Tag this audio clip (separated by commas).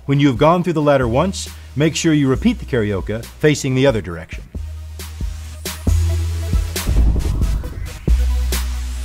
Music, Speech